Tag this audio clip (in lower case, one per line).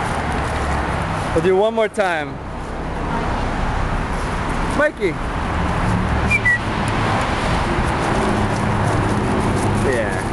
speech